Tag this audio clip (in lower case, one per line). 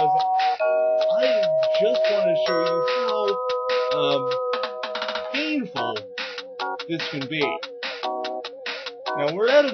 music
speech